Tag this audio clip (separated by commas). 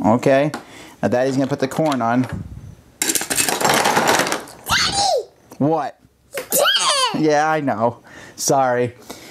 Speech, kid speaking, inside a small room